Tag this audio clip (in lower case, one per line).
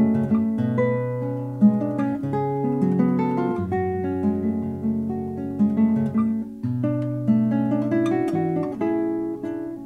music
plucked string instrument